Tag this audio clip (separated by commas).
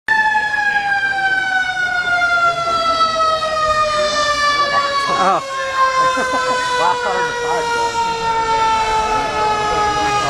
fire truck siren